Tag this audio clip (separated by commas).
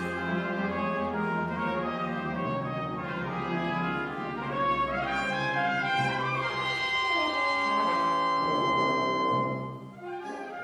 Music, Brass instrument, Orchestra, French horn